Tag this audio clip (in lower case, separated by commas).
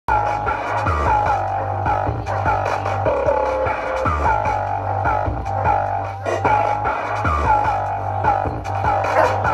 music, scratching (performance technique)